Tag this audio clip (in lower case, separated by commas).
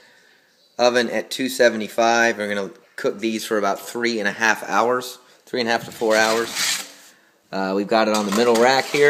inside a small room, speech